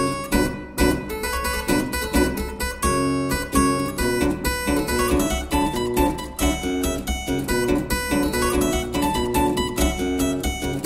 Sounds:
playing harpsichord

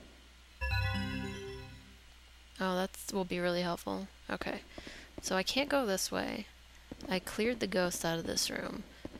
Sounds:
music
speech

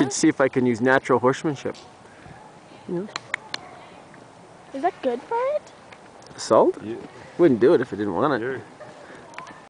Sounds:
speech

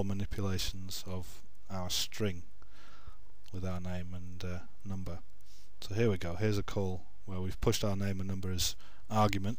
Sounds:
speech

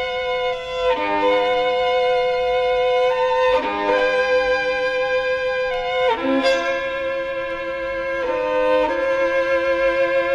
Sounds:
bowed string instrument
music
violin

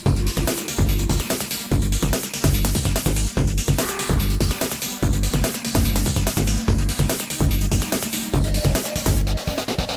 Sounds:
music

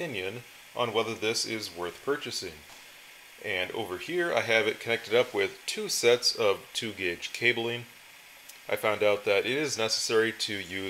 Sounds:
speech

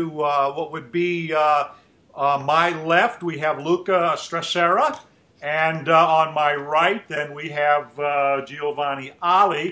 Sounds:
speech

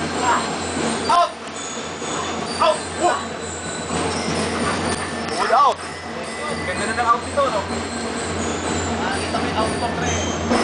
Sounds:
speech

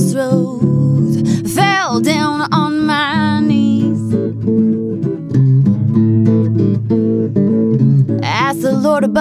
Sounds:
acoustic guitar
music
strum
guitar
musical instrument
plucked string instrument

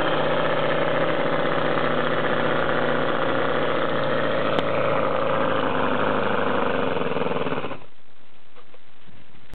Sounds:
engine
vehicle

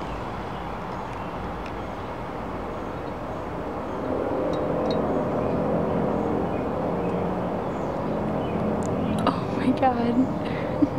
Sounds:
speech

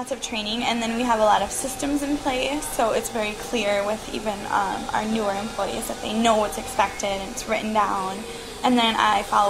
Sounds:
music
speech

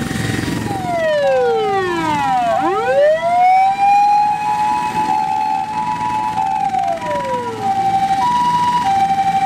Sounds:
fire truck siren

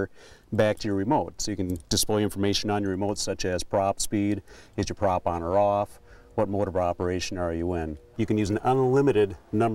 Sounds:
speech

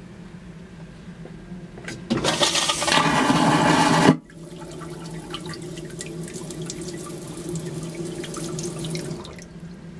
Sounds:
toilet flushing

